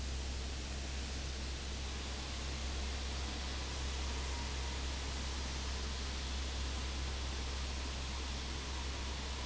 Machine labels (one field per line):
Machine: fan